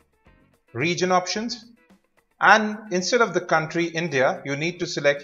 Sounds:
Speech

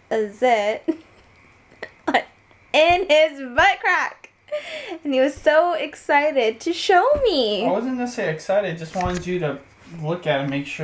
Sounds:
Speech

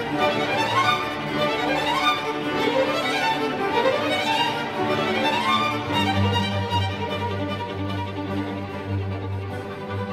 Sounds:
Music, Classical music

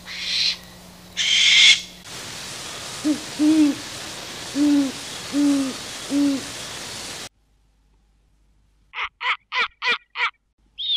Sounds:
owl hooting

